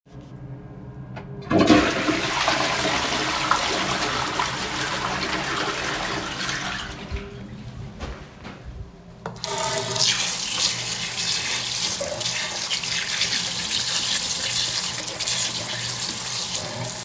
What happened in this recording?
I flushed the toilet. Afterwards, I turned on the bathroom sink tap to wash my hands.